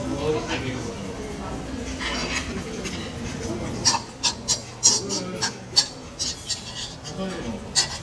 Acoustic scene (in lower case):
restaurant